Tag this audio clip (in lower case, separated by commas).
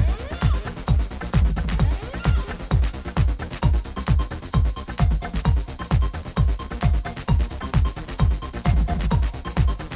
electronic music, music, techno